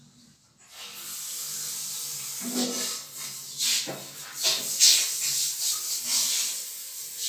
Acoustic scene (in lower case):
restroom